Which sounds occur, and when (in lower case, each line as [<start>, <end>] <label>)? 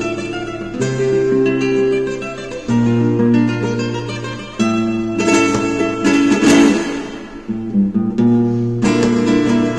[0.00, 9.75] music